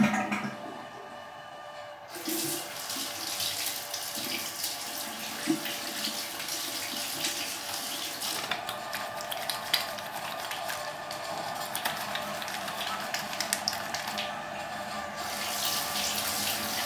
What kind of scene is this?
restroom